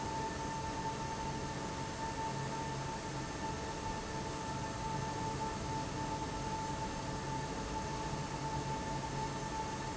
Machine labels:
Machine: fan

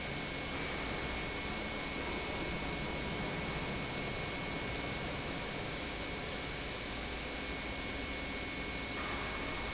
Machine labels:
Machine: pump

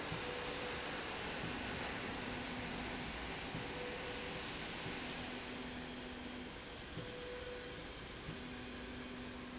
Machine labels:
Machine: slide rail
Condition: normal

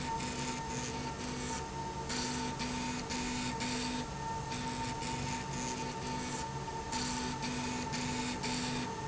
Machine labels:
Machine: slide rail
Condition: abnormal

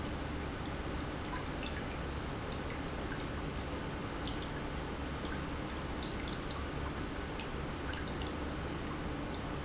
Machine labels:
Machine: pump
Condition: normal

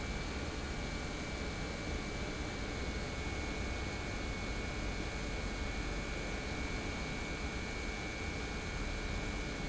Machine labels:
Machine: pump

